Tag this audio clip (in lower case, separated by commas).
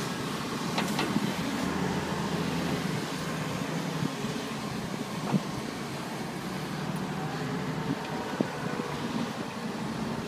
outside, rural or natural, vehicle